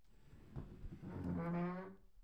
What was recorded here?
wooden furniture moving